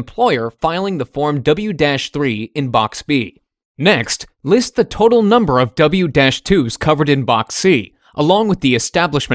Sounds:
speech

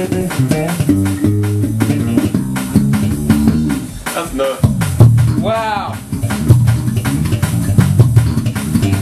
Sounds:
musical instrument, bass guitar, plucked string instrument, guitar, speech, music

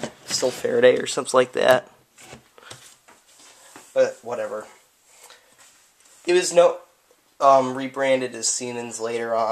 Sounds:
speech

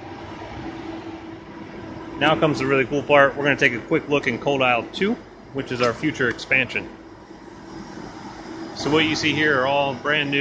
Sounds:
speech

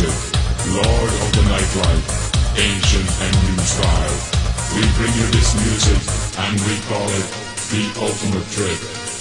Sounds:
music

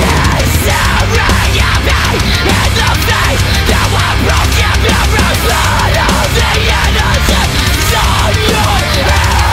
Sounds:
music

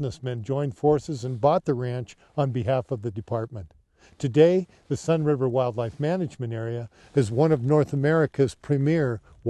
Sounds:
speech

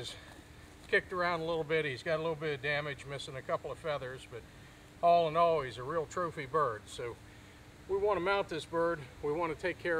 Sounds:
speech

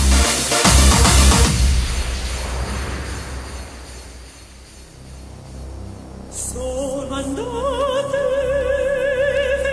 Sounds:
music

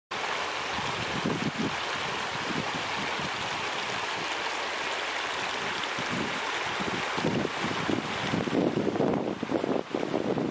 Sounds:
stream burbling, stream

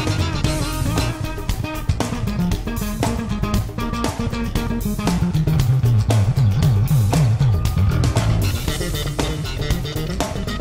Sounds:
music

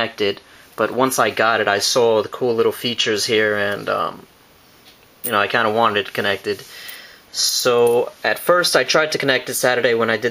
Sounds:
speech

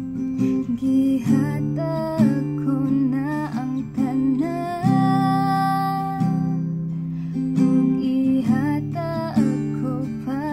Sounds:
plucked string instrument, strum, musical instrument, music, guitar, acoustic guitar

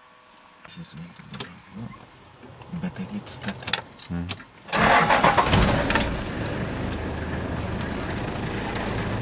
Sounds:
speech

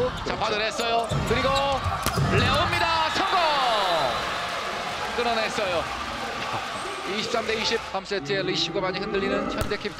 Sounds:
playing volleyball

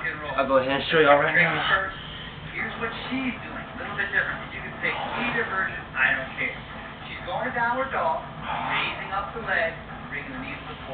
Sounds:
music, speech

